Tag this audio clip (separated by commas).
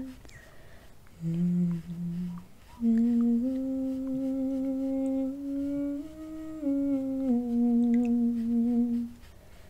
Humming